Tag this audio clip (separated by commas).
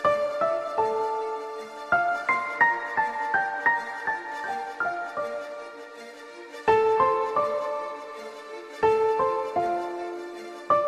Music